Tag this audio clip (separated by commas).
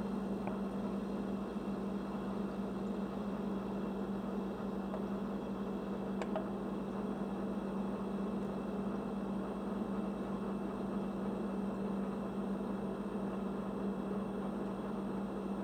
Engine